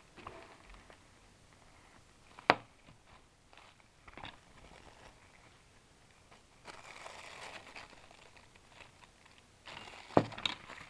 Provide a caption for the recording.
Small tapping sound